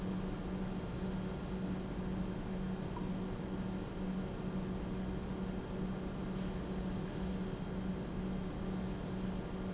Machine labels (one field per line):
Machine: pump